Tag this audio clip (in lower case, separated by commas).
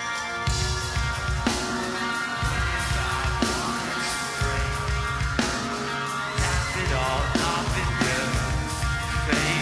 music